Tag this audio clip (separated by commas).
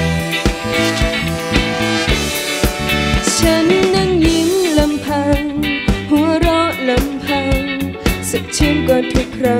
Pop music, Music